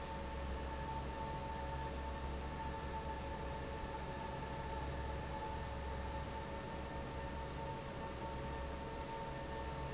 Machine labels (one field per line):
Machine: fan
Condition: normal